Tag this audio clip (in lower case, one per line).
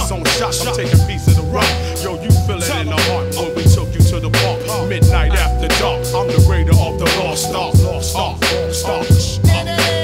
music